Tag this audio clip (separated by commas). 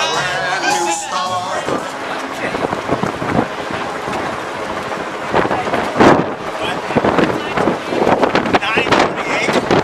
outside, urban or man-made, Speech, Run, Music